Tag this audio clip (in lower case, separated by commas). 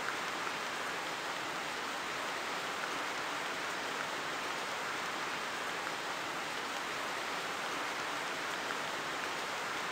rain on surface